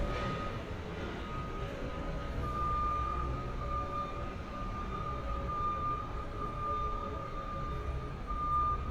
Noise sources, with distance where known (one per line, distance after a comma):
large-sounding engine
reverse beeper